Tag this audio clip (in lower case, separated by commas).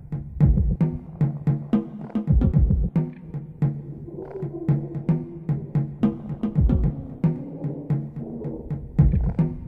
soundtrack music, music, wood block